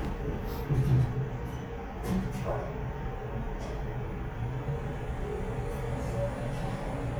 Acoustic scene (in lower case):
elevator